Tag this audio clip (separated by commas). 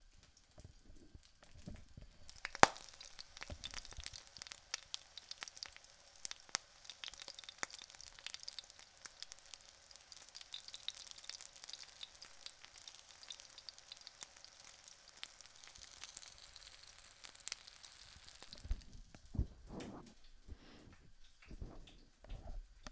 Frying (food), Domestic sounds